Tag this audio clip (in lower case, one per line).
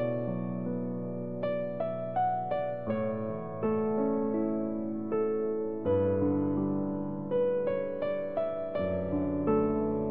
music